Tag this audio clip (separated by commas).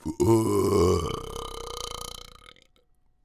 Burping